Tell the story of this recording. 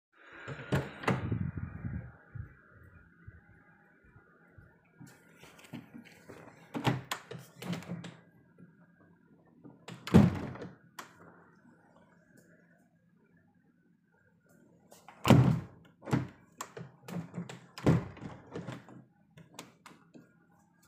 I entered my room through the door and proceeded to the window. For a couple of moments I tried to open, then felt the cold and closed it.